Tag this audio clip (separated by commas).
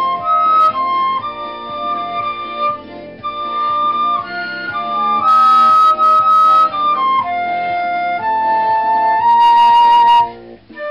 Flute, Music